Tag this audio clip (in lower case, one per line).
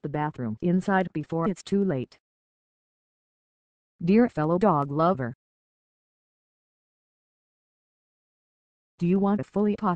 speech